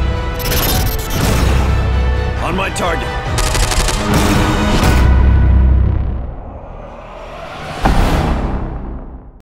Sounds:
music, speech

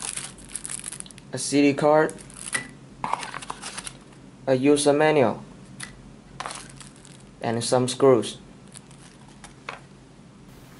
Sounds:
speech

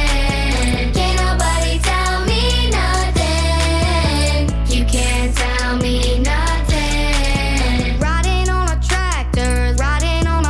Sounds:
child singing

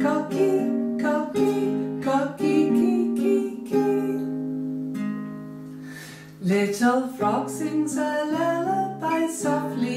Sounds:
music

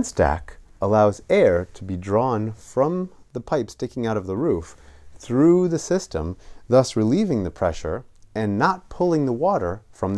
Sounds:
speech

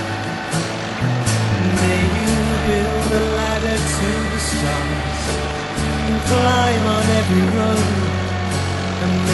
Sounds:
music

